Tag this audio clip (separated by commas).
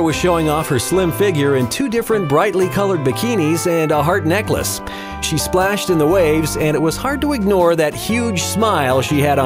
Speech, Music